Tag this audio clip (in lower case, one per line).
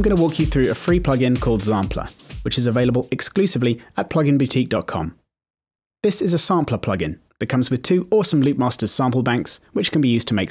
music
speech